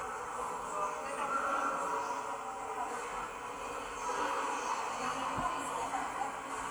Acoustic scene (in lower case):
subway station